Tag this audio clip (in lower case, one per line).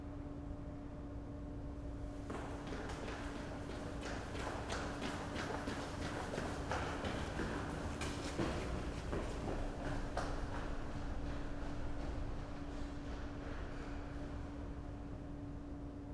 run